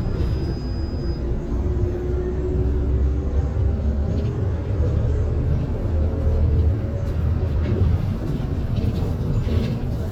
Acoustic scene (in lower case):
bus